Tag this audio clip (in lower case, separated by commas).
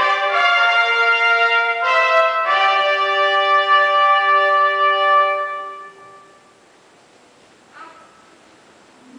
speech, music